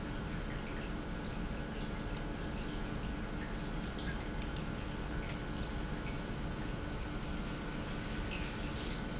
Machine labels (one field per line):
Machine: pump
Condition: normal